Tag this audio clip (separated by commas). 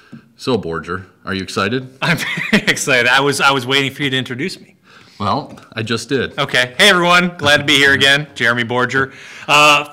Speech